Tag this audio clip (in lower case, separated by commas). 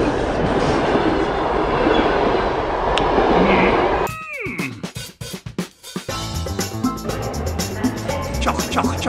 subway, rail transport, train, railroad car